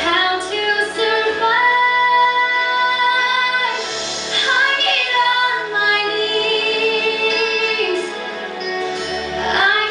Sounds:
female singing, music

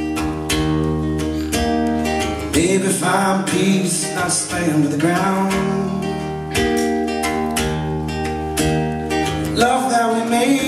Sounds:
musical instrument, music, guitar, plucked string instrument

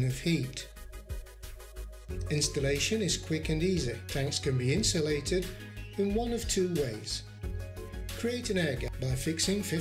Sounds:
speech, music

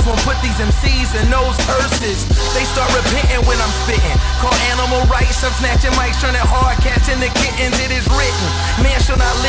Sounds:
blues, music

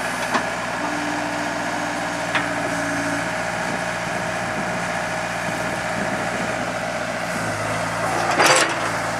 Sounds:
idling, vehicle

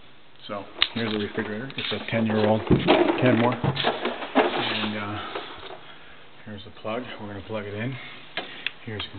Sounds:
speech

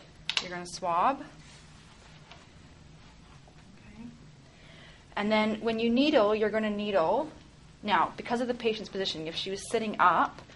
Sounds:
speech, inside a small room

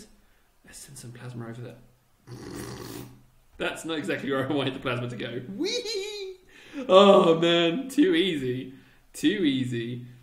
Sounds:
speech, inside a small room

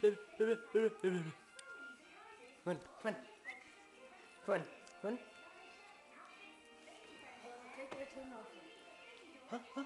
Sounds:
speech, music

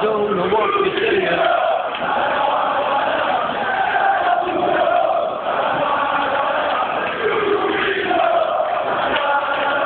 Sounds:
speech

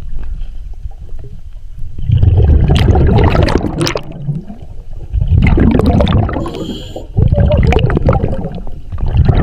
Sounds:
scuba diving

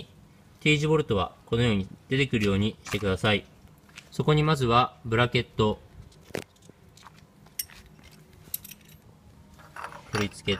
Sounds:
speech

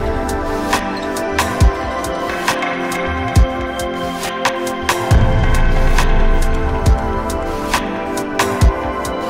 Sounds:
music

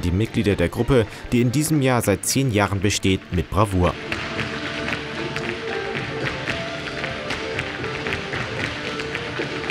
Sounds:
tap dancing

